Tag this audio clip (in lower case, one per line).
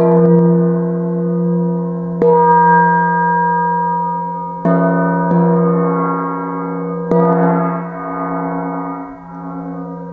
gong